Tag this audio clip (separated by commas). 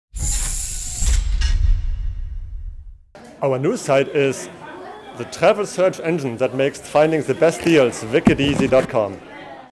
Music, Speech